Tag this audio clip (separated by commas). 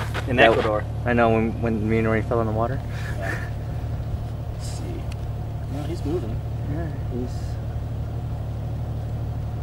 Speech, outside, urban or man-made